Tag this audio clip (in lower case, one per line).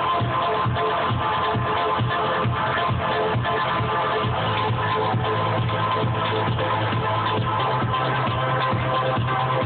music